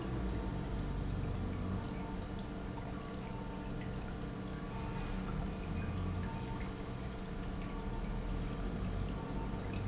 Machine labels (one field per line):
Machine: pump